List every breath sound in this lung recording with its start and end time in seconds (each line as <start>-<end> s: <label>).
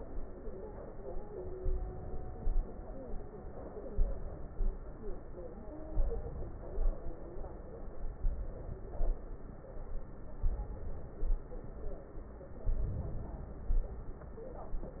1.61-2.39 s: inhalation
2.39-3.06 s: exhalation
3.95-4.62 s: inhalation
4.62-5.17 s: exhalation
5.95-6.76 s: inhalation
6.76-7.33 s: exhalation
8.23-8.95 s: inhalation
8.95-9.46 s: exhalation
10.47-11.17 s: inhalation
11.17-11.88 s: exhalation
12.69-13.68 s: inhalation
13.68-14.25 s: exhalation